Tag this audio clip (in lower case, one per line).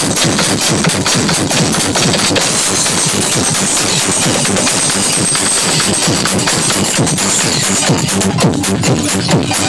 music
sound effect